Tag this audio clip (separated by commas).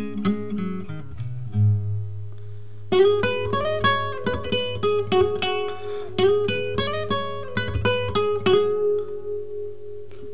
Music, Guitar, Musical instrument, Acoustic guitar